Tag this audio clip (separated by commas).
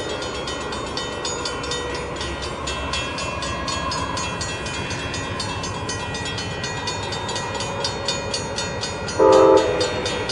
Vehicle